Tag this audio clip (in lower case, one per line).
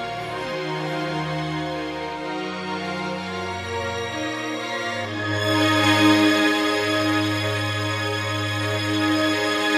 violin
music
musical instrument